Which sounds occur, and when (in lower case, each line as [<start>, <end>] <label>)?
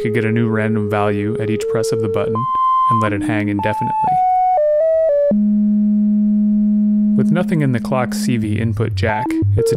[0.00, 2.26] male speech
[0.00, 9.75] electronic tuner
[0.00, 9.75] music
[2.89, 4.21] male speech
[7.18, 9.41] male speech
[9.55, 9.75] male speech